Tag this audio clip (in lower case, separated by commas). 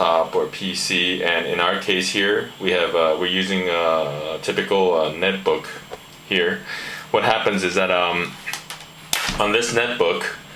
speech